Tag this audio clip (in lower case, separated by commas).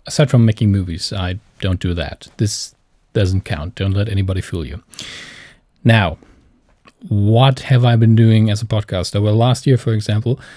speech